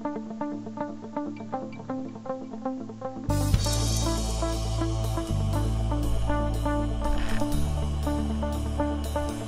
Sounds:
Music

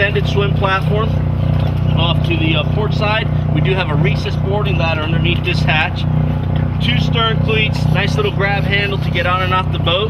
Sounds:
Speech

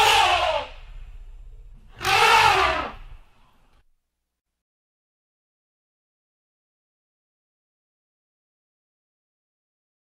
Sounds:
elephant trumpeting

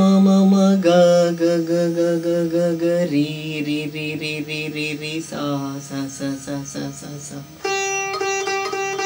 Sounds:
playing sitar

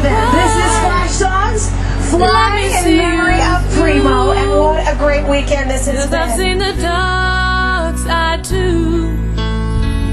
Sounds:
Music, Speech

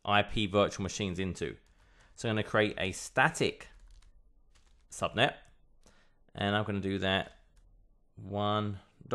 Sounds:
Speech

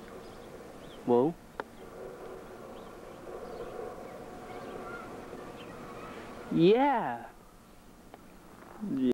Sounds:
Speech

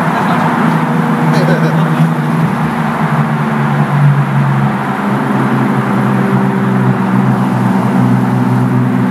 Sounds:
Speech

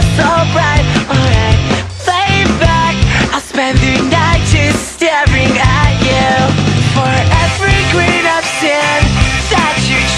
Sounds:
Music

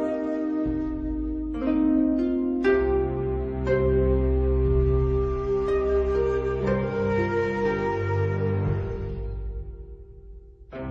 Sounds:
Music, Sad music

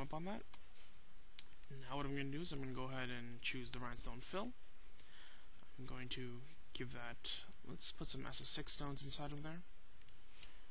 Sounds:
Speech

